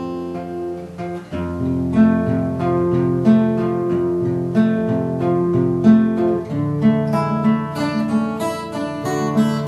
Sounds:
Strum, Guitar, Plucked string instrument, Music, Musical instrument

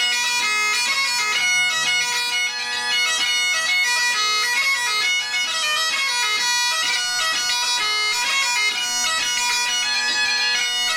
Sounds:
Wind instrument, Bagpipes

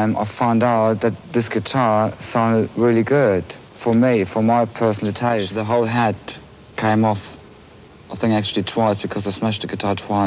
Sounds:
Speech

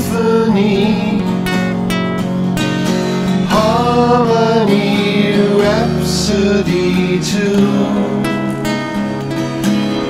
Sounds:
Music

